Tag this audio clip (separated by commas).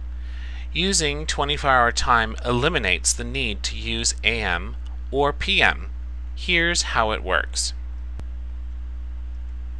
Speech